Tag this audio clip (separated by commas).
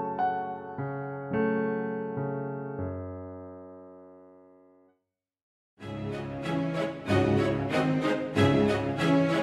Music